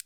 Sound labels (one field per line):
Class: switch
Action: being turned on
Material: plastic